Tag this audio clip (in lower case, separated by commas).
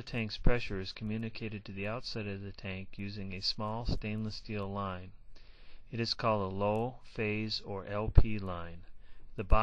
speech